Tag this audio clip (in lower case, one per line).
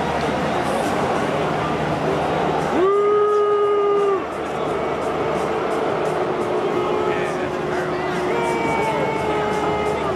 speech
music